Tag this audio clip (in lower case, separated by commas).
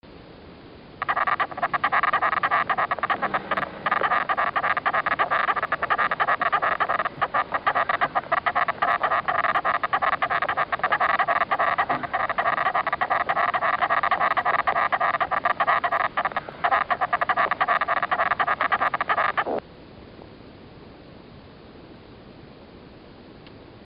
animal, wild animals, insect